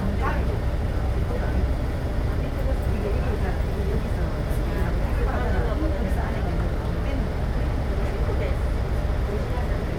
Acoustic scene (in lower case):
bus